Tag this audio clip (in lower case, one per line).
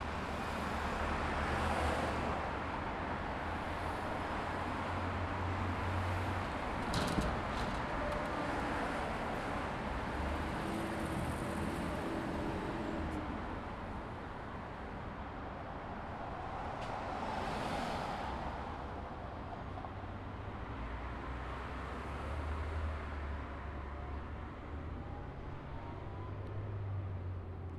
engine
vehicle
car passing by
car
traffic noise
motor vehicle (road)